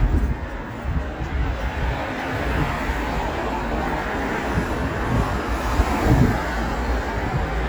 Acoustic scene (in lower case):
street